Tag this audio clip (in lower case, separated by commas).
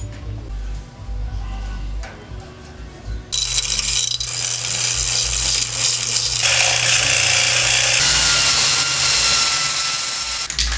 music